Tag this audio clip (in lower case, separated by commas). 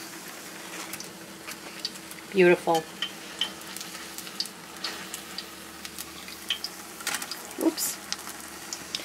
speech, frying (food), inside a small room